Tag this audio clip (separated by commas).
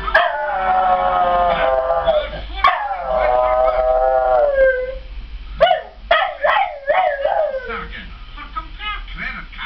canids, Howl, Animal, Domestic animals, Dog, Speech